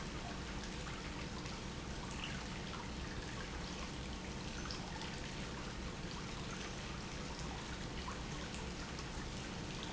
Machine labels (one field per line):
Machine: pump